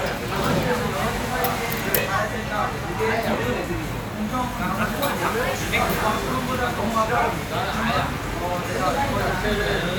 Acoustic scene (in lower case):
crowded indoor space